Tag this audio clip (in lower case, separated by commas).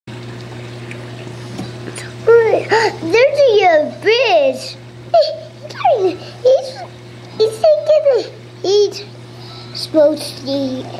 kid speaking, speech